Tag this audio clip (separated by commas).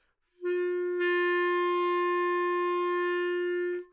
Music, woodwind instrument, Musical instrument